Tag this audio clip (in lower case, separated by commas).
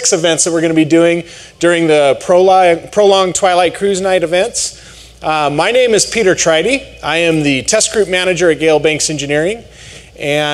speech